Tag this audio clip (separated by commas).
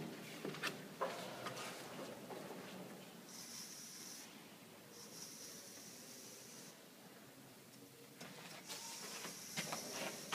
inside a small room